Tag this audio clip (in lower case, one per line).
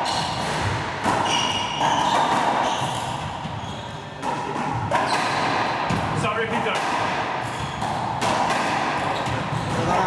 playing squash